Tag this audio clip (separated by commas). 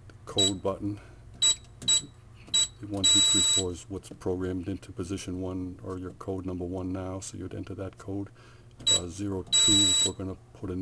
Speech, inside a small room